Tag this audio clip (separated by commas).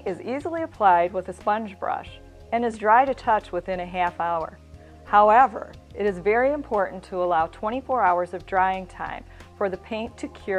Music, Speech